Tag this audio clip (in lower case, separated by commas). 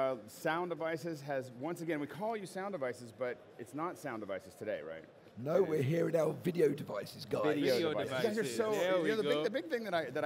speech